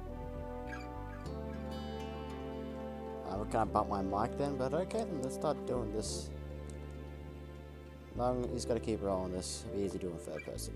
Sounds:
Music, Speech

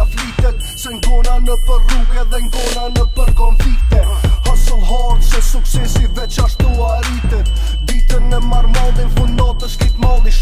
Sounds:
Music

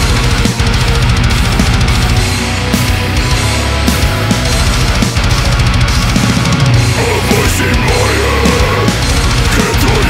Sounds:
Music

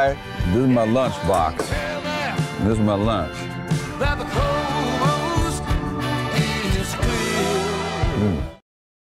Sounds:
Speech, Music

